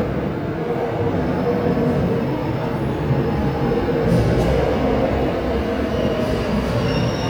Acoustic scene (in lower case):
subway station